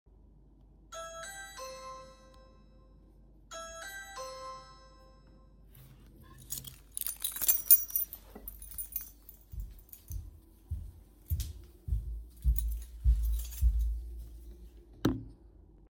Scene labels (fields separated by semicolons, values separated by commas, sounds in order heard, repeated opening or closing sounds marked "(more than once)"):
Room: living room; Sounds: bell ringing, keys, footsteps